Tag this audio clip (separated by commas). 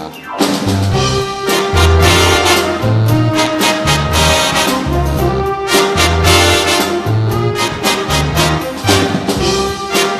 Music